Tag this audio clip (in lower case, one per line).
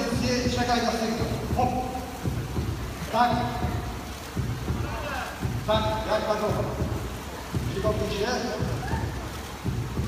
speech
music